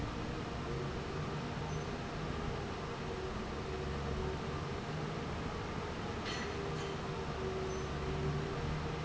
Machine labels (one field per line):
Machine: fan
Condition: normal